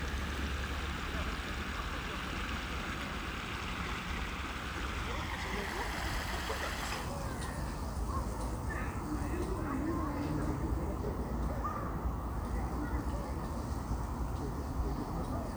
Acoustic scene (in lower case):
park